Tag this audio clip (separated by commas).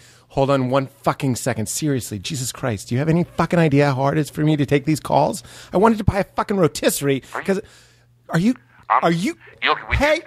Speech